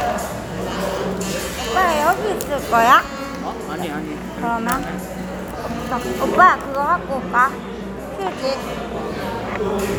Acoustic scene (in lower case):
cafe